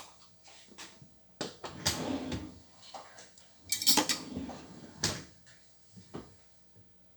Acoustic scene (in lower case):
kitchen